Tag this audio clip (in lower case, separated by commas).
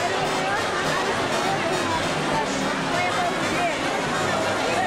music, speech